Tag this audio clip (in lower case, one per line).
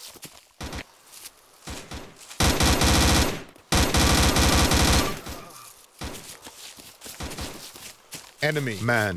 speech